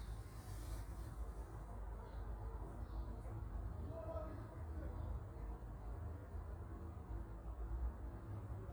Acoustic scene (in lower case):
park